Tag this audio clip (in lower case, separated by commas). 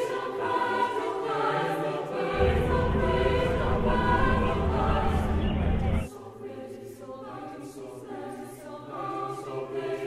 clip-clop, music